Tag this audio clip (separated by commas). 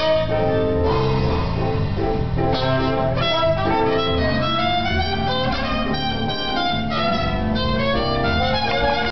Music, Soundtrack music